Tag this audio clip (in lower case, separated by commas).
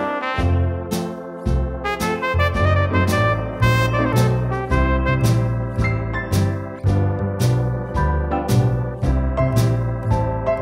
keyboard (musical), electronic organ, music, musical instrument